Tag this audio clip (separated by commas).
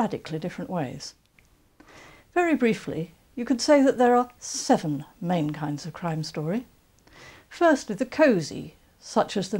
Speech